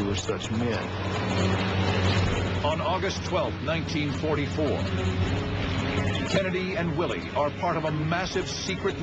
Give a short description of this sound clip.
A man narrates a film